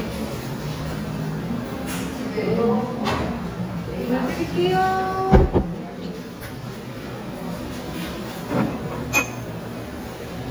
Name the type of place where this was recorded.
restaurant